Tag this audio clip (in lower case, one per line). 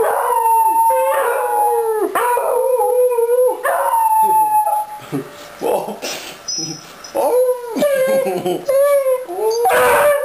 animal
dog
pets
yip